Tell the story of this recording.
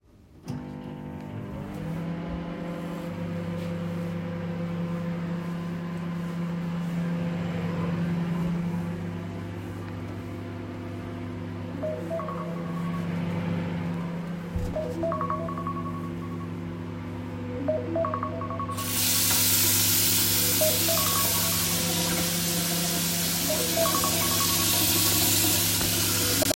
First the microwave started, then the phone rang and third the water was turned on. All these sounds were active until the end.